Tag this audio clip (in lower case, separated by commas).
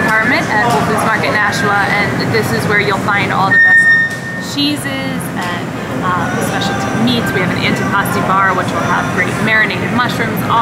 speech, inside a public space